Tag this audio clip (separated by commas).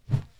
swoosh